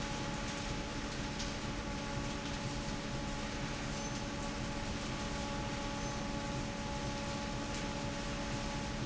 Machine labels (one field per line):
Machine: fan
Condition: normal